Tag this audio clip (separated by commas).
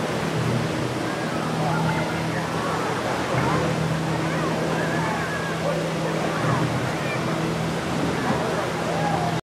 Speech, Waterfall